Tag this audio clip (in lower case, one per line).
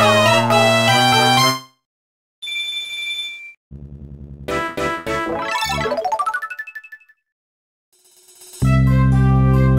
music